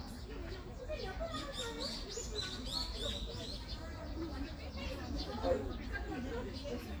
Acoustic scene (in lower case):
park